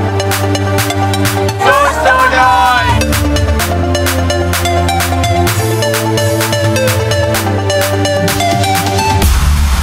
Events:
0.0s-9.8s: music
1.5s-3.0s: male speech
1.5s-3.0s: woman speaking

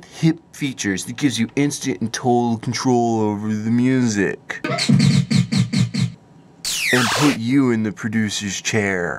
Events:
0.0s-0.4s: man speaking
0.0s-9.1s: mechanisms
0.3s-0.4s: tick
0.5s-4.3s: man speaking
1.5s-1.5s: tick
2.6s-2.6s: tick
4.5s-6.1s: music
6.6s-7.4s: sound effect
6.9s-9.1s: man speaking

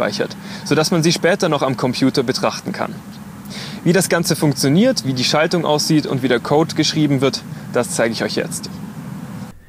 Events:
0.0s-0.3s: man speaking
0.0s-9.6s: mechanisms
0.4s-0.6s: breathing
0.7s-2.8s: man speaking
3.4s-3.8s: breathing
3.8s-7.4s: man speaking
7.4s-7.7s: breathing
7.7s-8.7s: man speaking
9.5s-9.6s: breathing

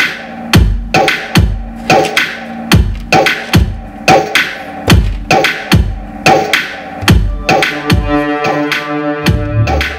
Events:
0.0s-9.9s: mechanisms
0.0s-9.9s: music
2.9s-3.0s: generic impact sounds
5.0s-5.2s: generic impact sounds
7.0s-7.1s: generic impact sounds
9.4s-9.5s: generic impact sounds

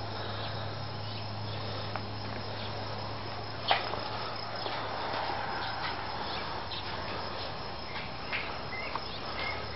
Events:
0.0s-9.7s: cricket
0.0s-9.7s: mechanisms
0.2s-0.5s: chirp
1.0s-1.8s: chirp
1.9s-2.1s: tap
2.4s-2.6s: chirp
3.6s-4.0s: tap
4.6s-4.7s: tap
5.1s-5.3s: tap
5.5s-5.9s: chirp
6.2s-7.2s: chirp
7.9s-8.0s: chirp
8.2s-8.5s: chirp
8.7s-9.0s: chirp
9.3s-9.7s: chirp

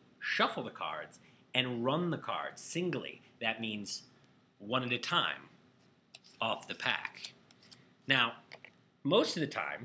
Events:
0.0s-1.1s: male speech
0.0s-9.8s: mechanisms
1.1s-1.3s: breathing
1.4s-3.6s: male speech
4.1s-7.0s: male speech
7.4s-8.1s: male speech
8.2s-8.4s: surface contact
8.5s-9.8s: male speech

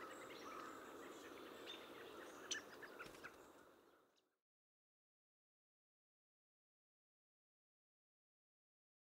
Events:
0.0s-9.1s: wind
0.1s-0.3s: bird vocalization
0.5s-3.0s: bird vocalization
1.3s-1.4s: tap
1.9s-2.0s: caw
2.1s-2.3s: human voice
2.2s-2.4s: caw
2.7s-3.0s: caw
3.1s-3.3s: caw
3.5s-3.8s: bird vocalization
3.6s-3.8s: caw
4.1s-4.9s: bird vocalization
5.2s-9.1s: bird vocalization
5.4s-5.6s: caw
6.0s-6.3s: caw
6.6s-7.0s: caw
7.3s-7.8s: human voice

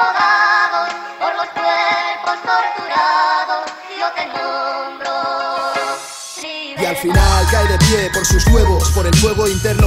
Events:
0.0s-9.8s: music
0.0s-0.9s: male singing
1.1s-3.8s: male singing
3.9s-5.9s: male singing
6.4s-9.8s: male singing

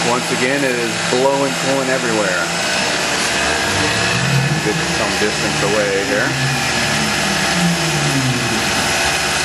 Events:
0.0s-9.4s: mechanisms
4.6s-6.3s: man speaking

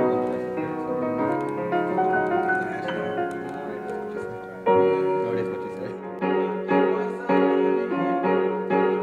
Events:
0.0s-9.0s: music
2.6s-3.0s: man speaking
3.5s-4.0s: man speaking
4.1s-4.4s: man speaking
5.2s-6.2s: man speaking
6.9s-7.2s: man speaking

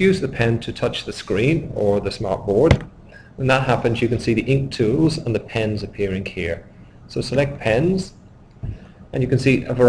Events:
0.0s-9.8s: mechanisms
0.0s-2.9s: man speaking
2.6s-2.9s: generic impact sounds
3.0s-3.3s: breathing
3.3s-6.5s: man speaking
6.6s-6.9s: breathing
7.0s-8.1s: man speaking
8.6s-8.8s: generic impact sounds
8.6s-9.0s: breathing
9.1s-9.8s: man speaking

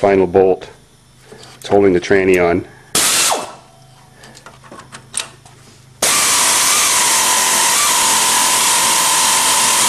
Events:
0.0s-0.7s: man speaking
0.0s-6.0s: mechanisms
1.2s-1.5s: breathing
1.3s-1.7s: generic impact sounds
1.6s-2.6s: man speaking
2.2s-2.4s: tick
2.6s-2.9s: breathing
2.9s-3.5s: medium engine (mid frequency)
3.7s-3.9s: tick
4.1s-4.4s: breathing
4.2s-4.9s: generic impact sounds
5.1s-5.5s: generic impact sounds
5.5s-5.9s: surface contact
6.0s-9.8s: medium engine (mid frequency)

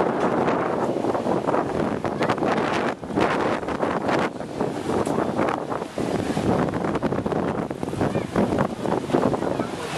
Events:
0.0s-9.9s: wind noise (microphone)
2.1s-2.3s: human voice
8.0s-8.3s: human voice
9.3s-9.9s: human voice

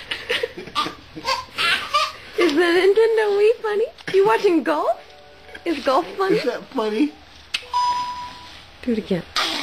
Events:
0.0s-1.2s: laughter
0.0s-9.6s: mechanisms
0.0s-0.9s: baby laughter
1.1s-2.2s: baby laughter
1.5s-2.4s: breathing
2.3s-3.9s: woman speaking
4.0s-4.6s: laughter
4.1s-5.0s: woman speaking
4.8s-6.2s: music
5.4s-6.1s: laughter
5.6s-6.5s: woman speaking
6.2s-7.2s: man speaking
7.5s-7.6s: generic impact sounds
7.7s-8.5s: beep
8.8s-9.2s: woman speaking

